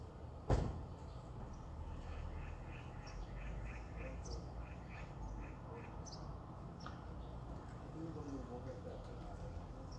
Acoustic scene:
residential area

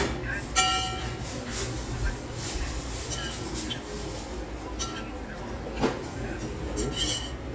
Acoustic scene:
restaurant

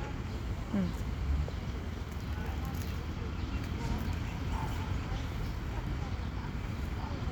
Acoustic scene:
park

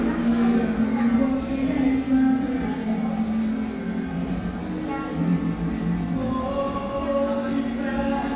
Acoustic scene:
cafe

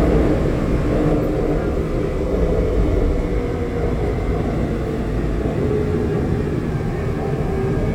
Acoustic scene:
subway train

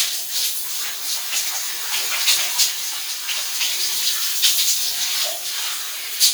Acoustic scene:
restroom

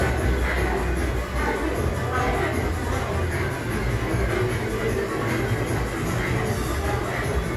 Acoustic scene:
crowded indoor space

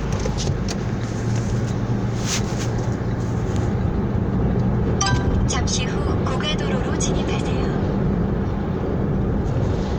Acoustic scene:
car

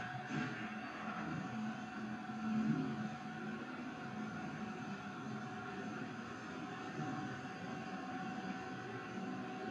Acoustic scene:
elevator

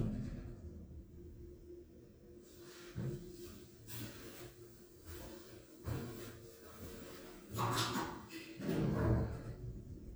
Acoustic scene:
elevator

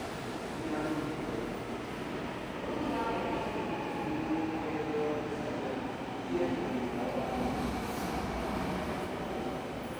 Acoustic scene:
subway station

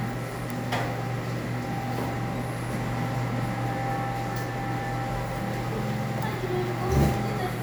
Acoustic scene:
cafe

